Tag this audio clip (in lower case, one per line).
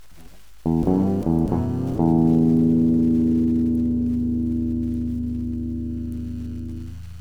guitar
plucked string instrument
music
musical instrument